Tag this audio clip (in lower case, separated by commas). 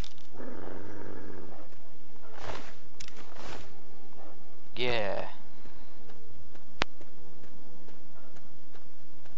speech, outside, urban or man-made, roar